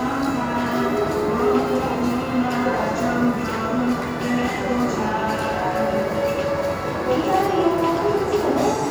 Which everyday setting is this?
subway station